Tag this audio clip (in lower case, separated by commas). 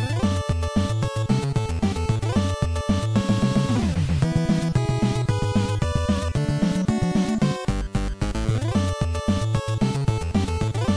music